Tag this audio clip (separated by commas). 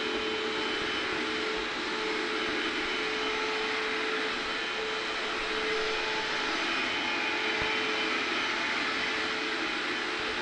Sound effect